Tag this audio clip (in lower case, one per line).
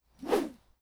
whoosh